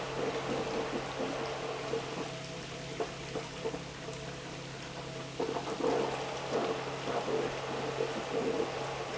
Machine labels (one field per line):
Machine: pump